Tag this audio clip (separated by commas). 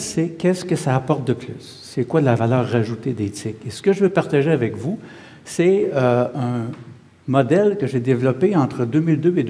Speech